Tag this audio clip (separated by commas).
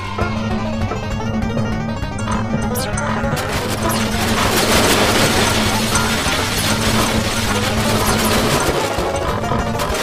Music